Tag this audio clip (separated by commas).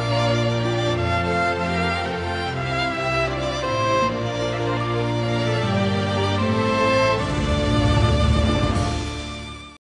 Music